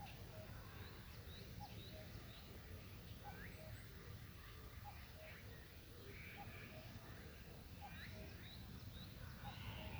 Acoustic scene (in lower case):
park